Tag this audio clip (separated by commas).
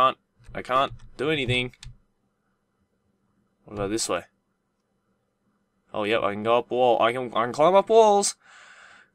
Speech